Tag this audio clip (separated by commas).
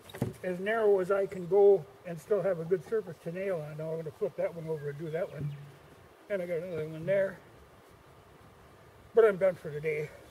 Speech